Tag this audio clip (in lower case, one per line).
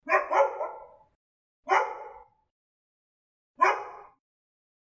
domestic animals
dog
animal